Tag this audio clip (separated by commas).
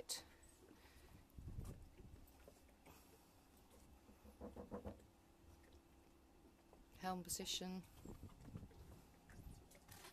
Speech